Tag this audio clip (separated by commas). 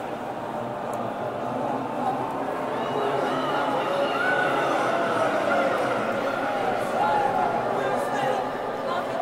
Music, Speech